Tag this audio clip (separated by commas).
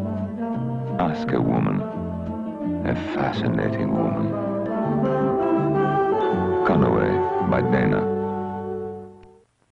Speech, Music